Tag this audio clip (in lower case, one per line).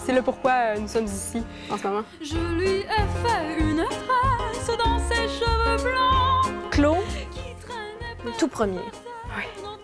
music
speech